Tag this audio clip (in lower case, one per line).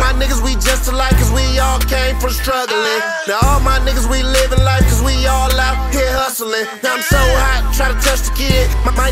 music